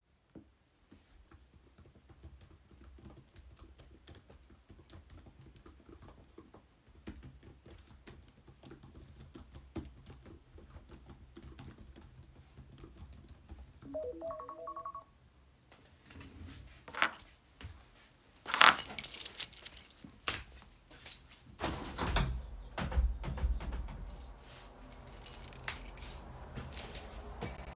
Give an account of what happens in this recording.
I was typing on the keyboard when an alarm went off. I picked up my keyschain, then walked to the window and opened it